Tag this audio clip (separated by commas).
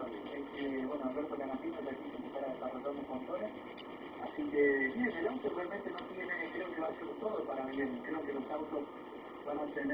Speech